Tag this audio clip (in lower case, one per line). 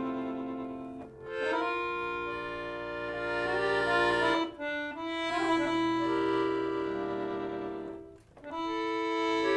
accordion
playing accordion